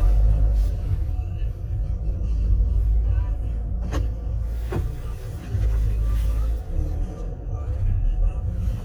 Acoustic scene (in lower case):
car